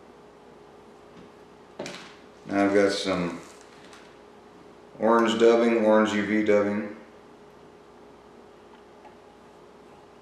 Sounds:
speech
inside a small room

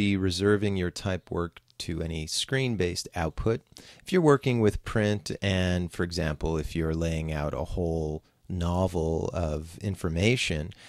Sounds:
speech

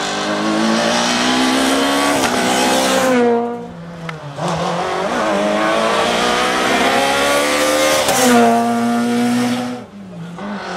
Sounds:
motor vehicle (road)
vehicle
car
race car

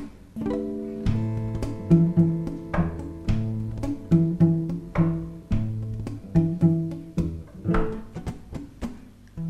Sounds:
music

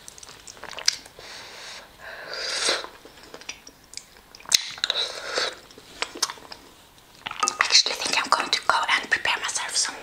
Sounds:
people eating noodle

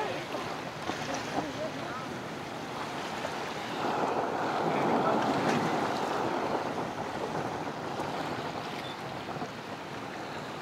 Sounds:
boat
vehicle
speech

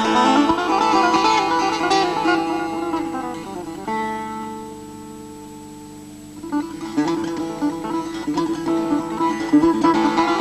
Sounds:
pizzicato

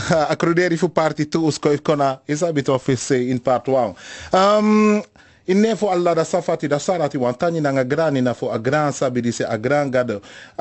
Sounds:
speech

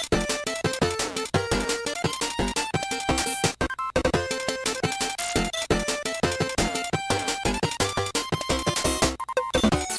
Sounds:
music

